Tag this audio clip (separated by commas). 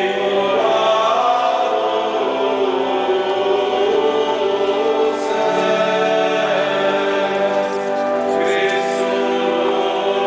Music, Mantra